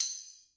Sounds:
Musical instrument, Percussion, Tambourine, Music

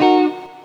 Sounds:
Plucked string instrument, Electric guitar, Musical instrument, Guitar, Music

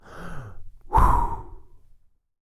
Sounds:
Breathing, Respiratory sounds

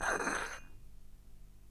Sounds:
dishes, pots and pans, Domestic sounds

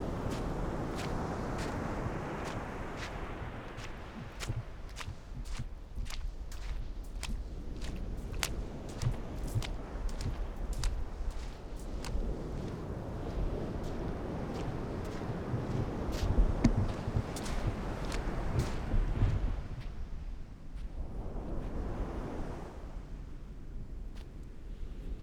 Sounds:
Ocean, Water, surf

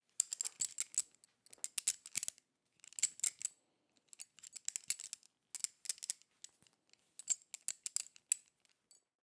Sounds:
clink, Glass

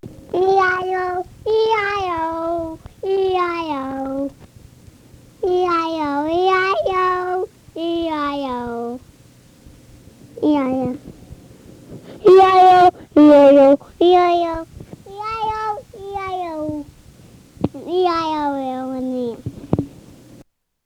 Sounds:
Human voice, Singing

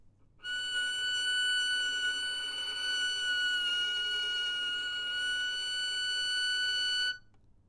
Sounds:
Music, Musical instrument, Bowed string instrument

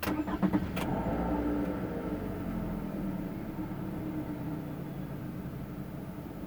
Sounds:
Engine, Vehicle, Motor vehicle (road)

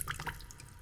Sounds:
Splash, Liquid

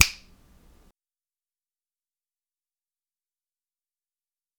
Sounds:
Finger snapping, Hands

